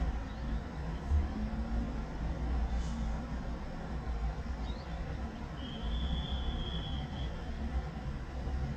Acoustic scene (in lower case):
residential area